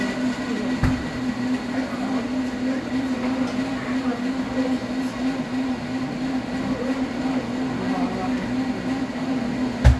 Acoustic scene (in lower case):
cafe